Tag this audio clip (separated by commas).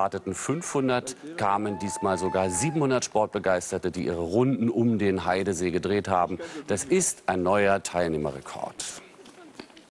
Speech, Run